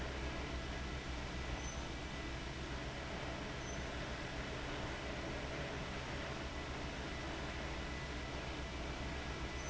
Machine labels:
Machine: fan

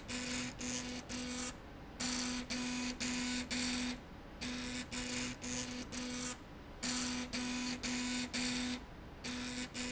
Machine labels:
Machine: slide rail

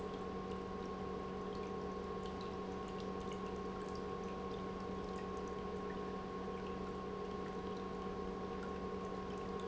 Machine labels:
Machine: pump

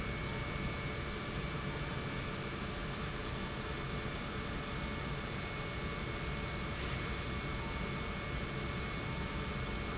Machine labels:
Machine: pump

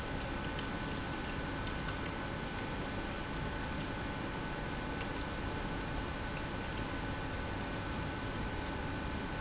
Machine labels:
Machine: pump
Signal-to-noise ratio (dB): -6 dB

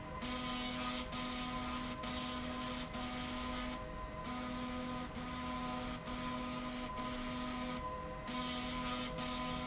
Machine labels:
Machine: slide rail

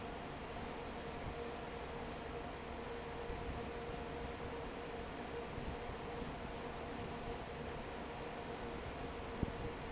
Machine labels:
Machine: fan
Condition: normal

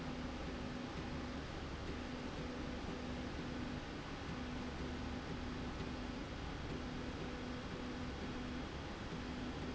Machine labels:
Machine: slide rail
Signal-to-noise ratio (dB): 0 dB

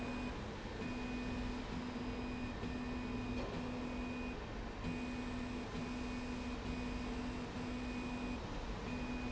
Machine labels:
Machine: slide rail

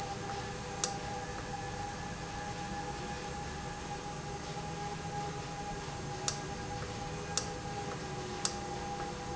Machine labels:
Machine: valve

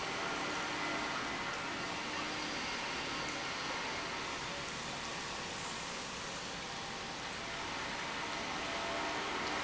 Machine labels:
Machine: pump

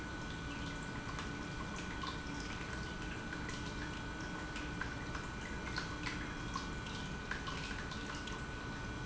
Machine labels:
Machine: pump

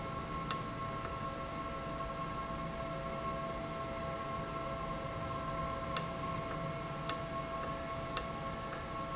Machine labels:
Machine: valve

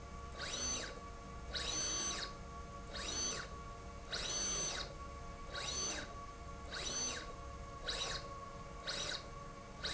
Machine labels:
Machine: slide rail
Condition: abnormal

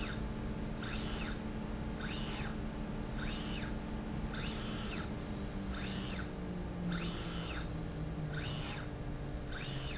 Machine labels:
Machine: slide rail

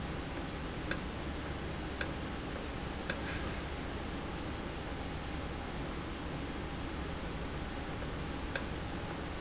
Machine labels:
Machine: valve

